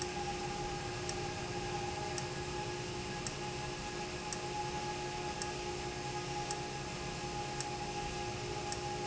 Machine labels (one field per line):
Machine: valve